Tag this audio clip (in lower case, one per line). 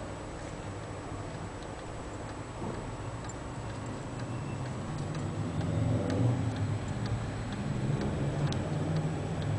tick-tock